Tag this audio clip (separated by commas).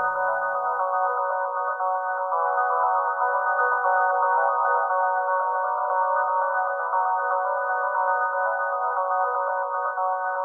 Progressive rock, Music